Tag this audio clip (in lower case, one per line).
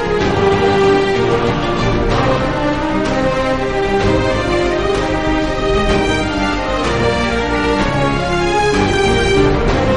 music
theme music